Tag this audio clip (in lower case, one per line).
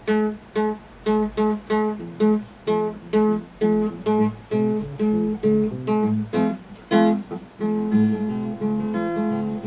music
guitar
plucked string instrument
musical instrument